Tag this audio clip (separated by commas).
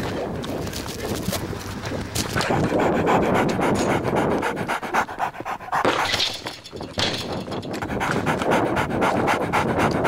Domestic animals, Dog, Whimper (dog), Animal